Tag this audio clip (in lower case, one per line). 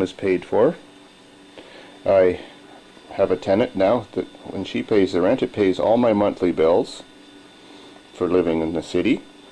inside a small room
speech